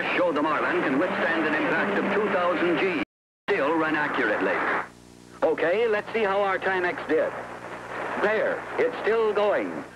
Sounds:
Water vehicle, Motorboat

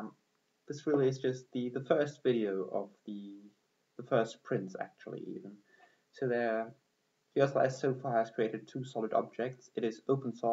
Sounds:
Speech

